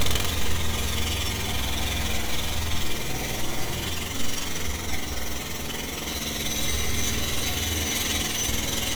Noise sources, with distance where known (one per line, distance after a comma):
jackhammer, near